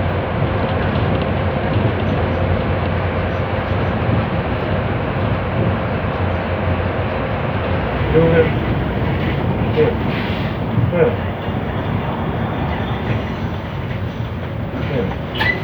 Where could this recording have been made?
on a bus